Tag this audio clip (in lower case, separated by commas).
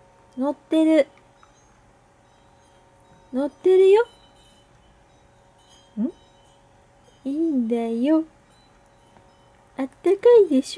speech, music